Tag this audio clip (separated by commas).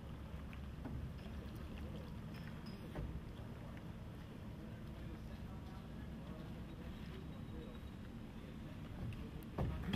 Water vehicle